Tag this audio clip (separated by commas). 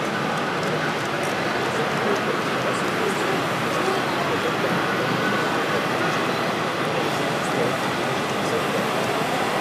train wagon